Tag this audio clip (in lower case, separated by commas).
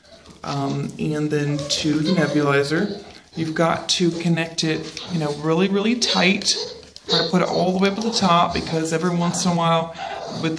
animal, speech, dog